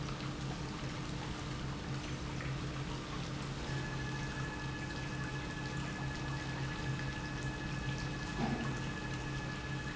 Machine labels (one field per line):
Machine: pump